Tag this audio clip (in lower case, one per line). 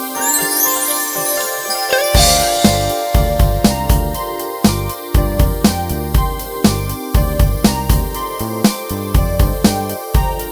music